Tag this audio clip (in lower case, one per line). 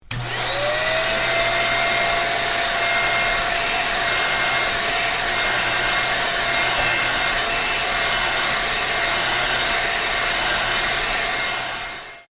home sounds